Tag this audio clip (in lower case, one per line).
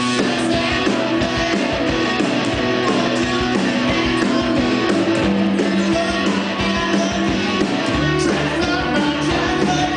music